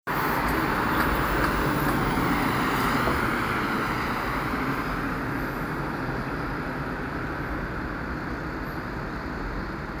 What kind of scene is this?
street